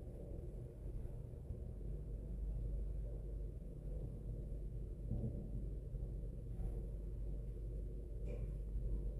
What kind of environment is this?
elevator